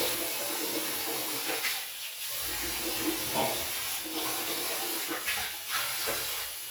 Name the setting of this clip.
restroom